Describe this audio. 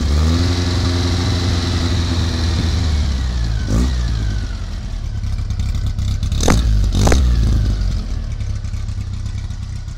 An engine idling